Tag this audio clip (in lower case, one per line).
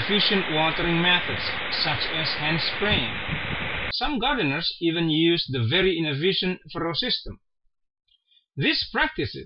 speech